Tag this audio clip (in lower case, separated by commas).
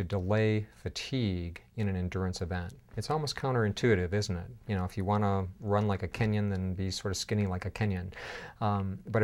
speech